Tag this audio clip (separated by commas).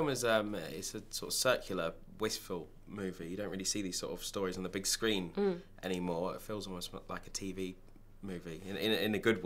Speech